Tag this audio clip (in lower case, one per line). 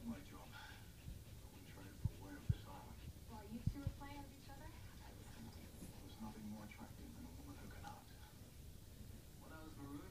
speech